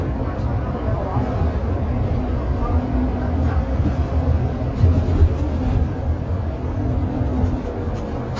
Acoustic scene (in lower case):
bus